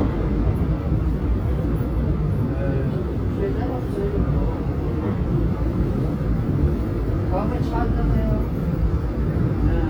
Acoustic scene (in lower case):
subway train